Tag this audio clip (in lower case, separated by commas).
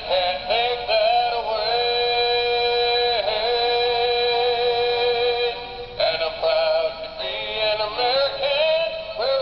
music, male singing, synthetic singing